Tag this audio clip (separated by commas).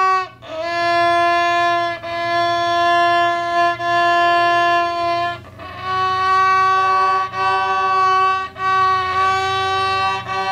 Music, Musical instrument, fiddle